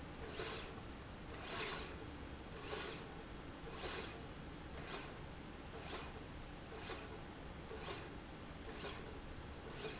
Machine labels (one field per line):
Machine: slide rail